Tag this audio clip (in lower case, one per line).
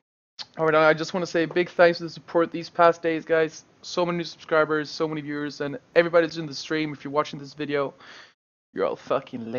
speech